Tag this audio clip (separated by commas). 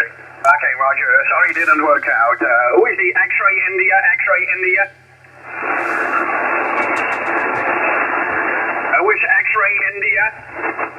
Radio, Speech